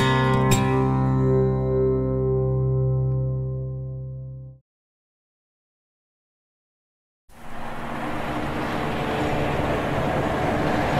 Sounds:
Train, Rail transport, Railroad car

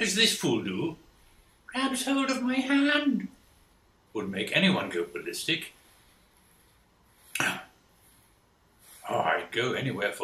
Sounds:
Speech

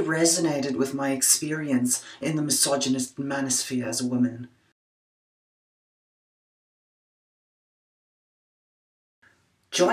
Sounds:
Speech

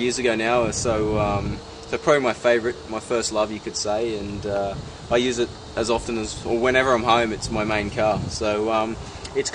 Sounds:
Speech

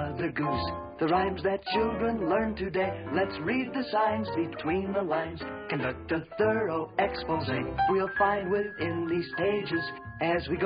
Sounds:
Music

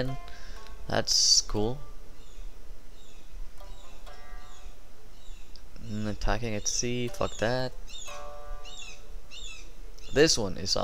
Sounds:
Chirp, Music, Speech

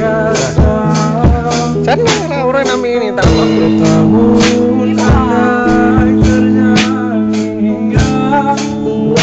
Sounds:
Male singing, Music

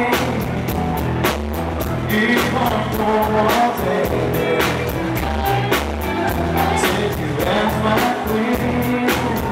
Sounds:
Male singing, Music

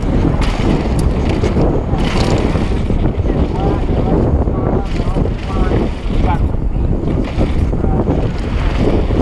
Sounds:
Speech

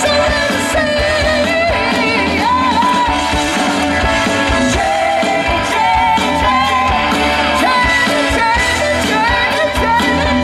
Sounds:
Singing, Music

